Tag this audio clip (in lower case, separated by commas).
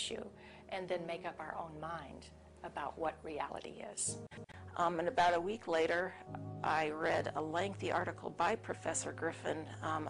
speech, music, inside a small room